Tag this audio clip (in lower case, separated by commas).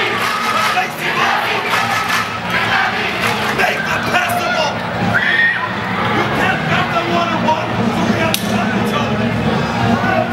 cheering, speech, music